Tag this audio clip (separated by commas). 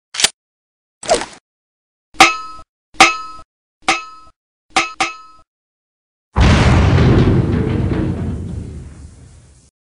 Explosion, Boom